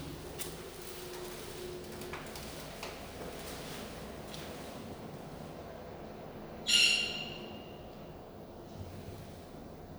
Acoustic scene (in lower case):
elevator